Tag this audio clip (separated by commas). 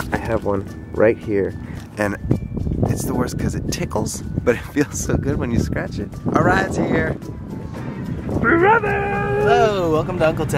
Speech, Music